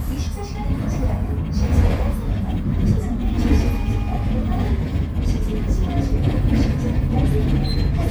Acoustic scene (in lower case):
bus